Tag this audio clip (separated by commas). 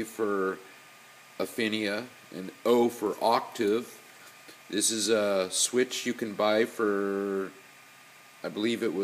Speech